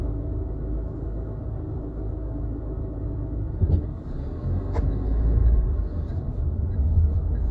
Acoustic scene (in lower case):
car